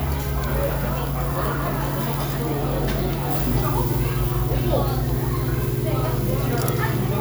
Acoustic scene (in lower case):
restaurant